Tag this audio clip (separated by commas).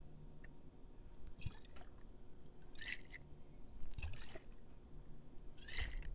Liquid